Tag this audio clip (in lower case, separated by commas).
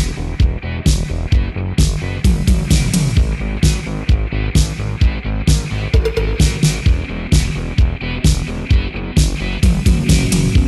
music